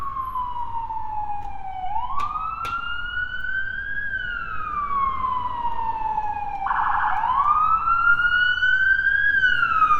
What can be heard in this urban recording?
siren